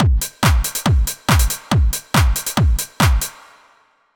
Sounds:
Musical instrument, Percussion, Drum kit, Music

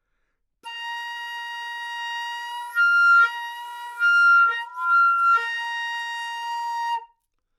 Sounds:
Music, woodwind instrument, Musical instrument

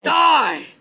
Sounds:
Human voice, Shout, Yell

